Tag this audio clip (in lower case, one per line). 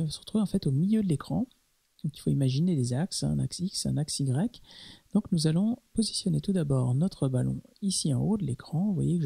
speech